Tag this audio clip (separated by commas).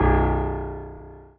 Music, Musical instrument, Piano, Keyboard (musical)